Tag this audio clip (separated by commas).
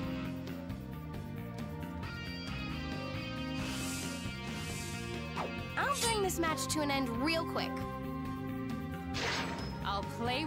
Music, Speech